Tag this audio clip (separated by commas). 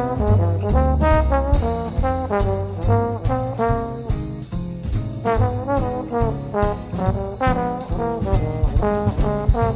Music